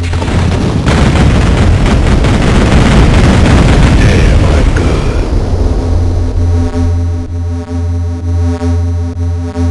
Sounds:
speech, music

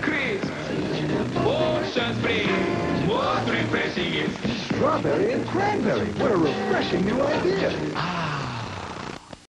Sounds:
music, speech

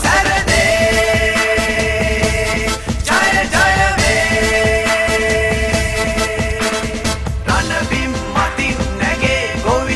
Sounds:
theme music, music

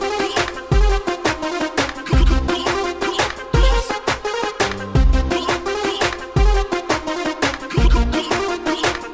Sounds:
funk, music

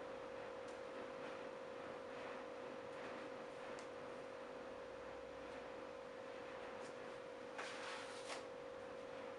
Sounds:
inside a small room

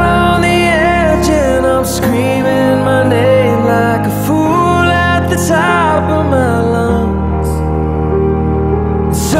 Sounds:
music

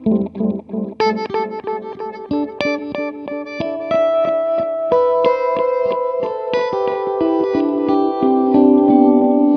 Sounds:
effects unit, plucked string instrument, musical instrument, guitar, music

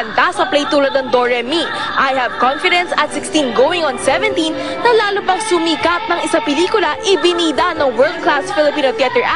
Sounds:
music, speech

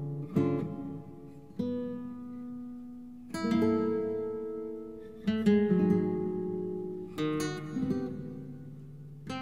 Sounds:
music

